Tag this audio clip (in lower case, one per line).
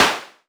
clapping
hands